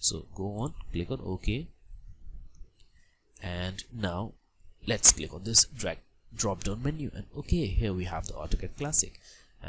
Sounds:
Speech, Clicking

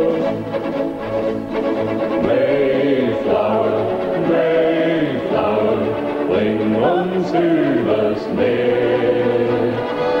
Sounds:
Music

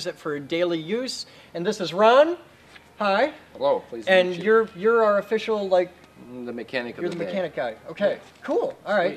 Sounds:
Speech

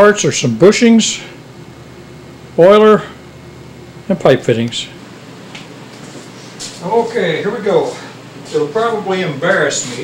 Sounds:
Speech

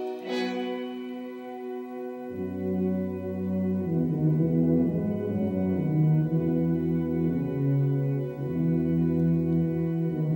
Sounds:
Classical music, Brass instrument, Musical instrument, Music, Orchestra

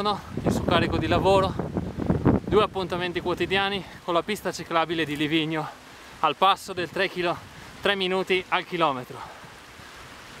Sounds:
outside, rural or natural, Speech

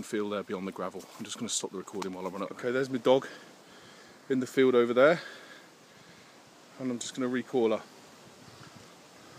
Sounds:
Speech

